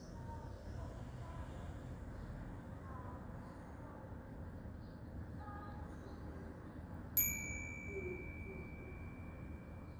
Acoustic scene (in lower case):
residential area